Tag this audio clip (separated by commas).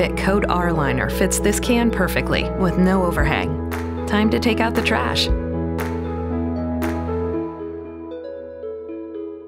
Music, Speech